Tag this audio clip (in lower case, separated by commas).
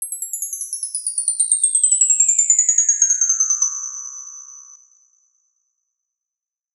chime, bell